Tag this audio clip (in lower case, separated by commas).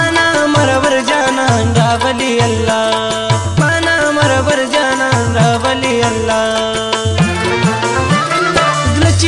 music